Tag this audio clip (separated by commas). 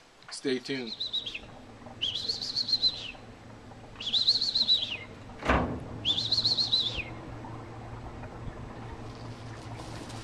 Speech, Chirp